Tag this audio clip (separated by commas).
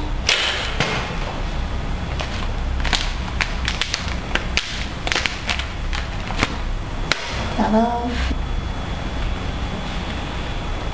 Speech